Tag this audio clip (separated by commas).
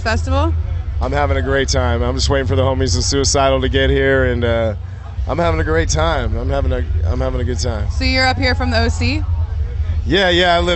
Speech